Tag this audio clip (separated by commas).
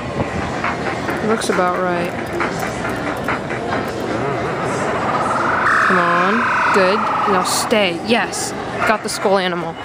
Speech, Music, inside a public space